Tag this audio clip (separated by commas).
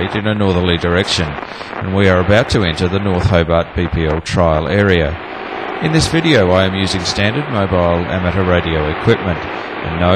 Speech, Radio